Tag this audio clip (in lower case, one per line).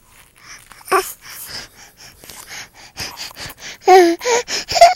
speech
human voice